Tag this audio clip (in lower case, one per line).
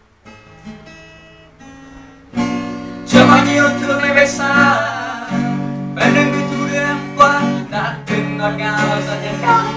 strum
guitar
musical instrument
music
plucked string instrument